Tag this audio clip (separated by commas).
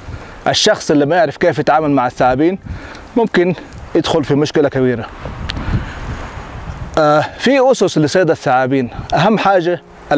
Music, Speech, outside, rural or natural